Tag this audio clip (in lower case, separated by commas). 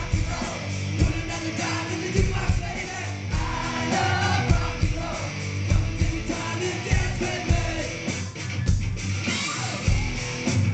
rock and roll, music